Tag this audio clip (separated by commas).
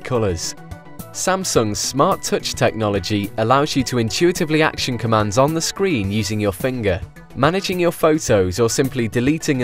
Music, Speech